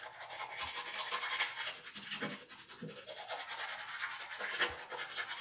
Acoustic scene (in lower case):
restroom